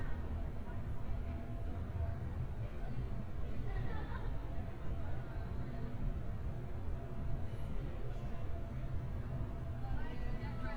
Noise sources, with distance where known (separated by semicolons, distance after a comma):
person or small group talking, near